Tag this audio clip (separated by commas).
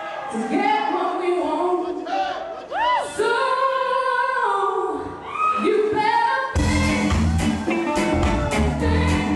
Music, Speech